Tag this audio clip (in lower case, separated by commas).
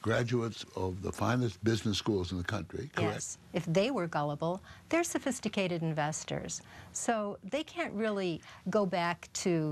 speech, inside a large room or hall